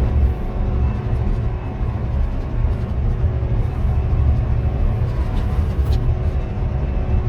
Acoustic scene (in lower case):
car